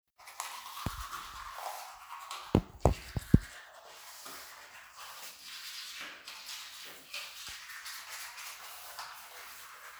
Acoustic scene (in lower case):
restroom